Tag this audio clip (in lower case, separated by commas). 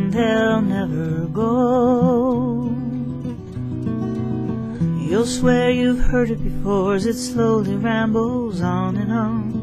music